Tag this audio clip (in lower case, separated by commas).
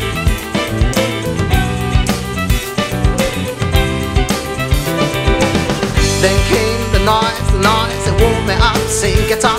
music